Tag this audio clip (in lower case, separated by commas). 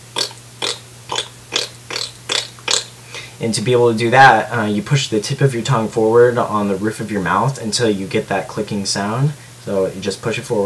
speech